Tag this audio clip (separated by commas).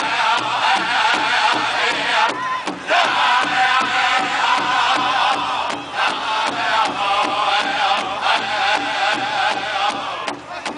Music